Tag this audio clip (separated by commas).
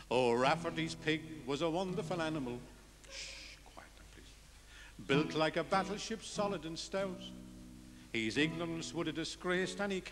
Music